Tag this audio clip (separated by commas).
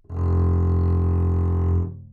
Bowed string instrument, Music, Musical instrument